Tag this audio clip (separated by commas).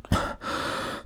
Respiratory sounds, Breathing